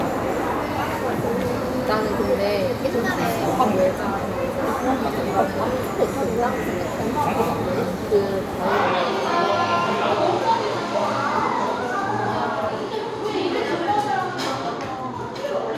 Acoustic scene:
cafe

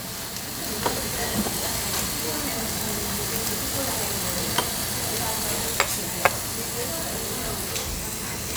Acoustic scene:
restaurant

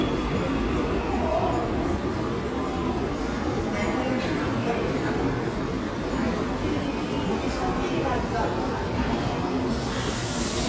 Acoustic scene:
subway station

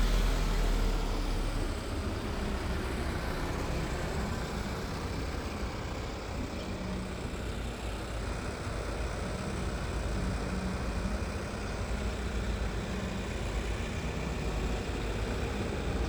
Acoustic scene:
street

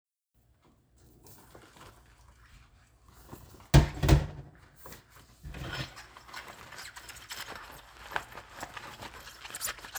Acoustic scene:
kitchen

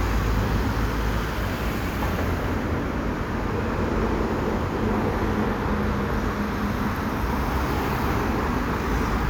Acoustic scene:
street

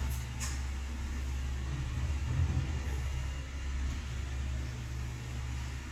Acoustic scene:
elevator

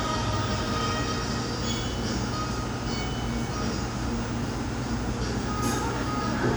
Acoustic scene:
cafe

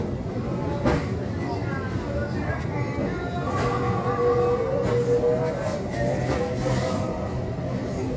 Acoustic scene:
crowded indoor space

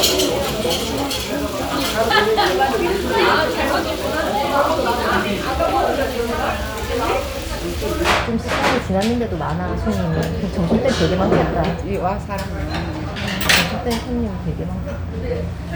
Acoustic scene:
restaurant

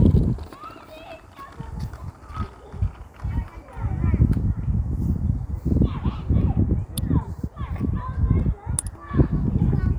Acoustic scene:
park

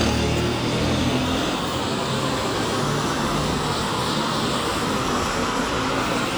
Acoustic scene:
street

